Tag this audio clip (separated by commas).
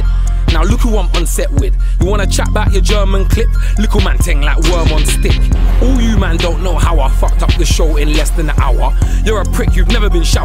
Music, Blues, Rhythm and blues